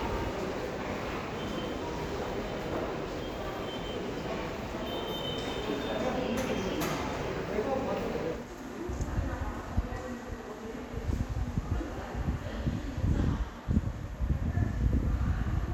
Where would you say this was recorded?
in a subway station